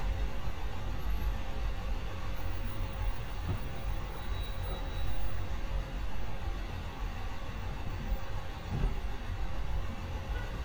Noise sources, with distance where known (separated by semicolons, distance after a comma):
large-sounding engine, near